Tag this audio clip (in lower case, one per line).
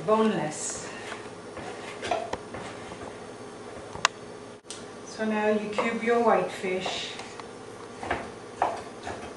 speech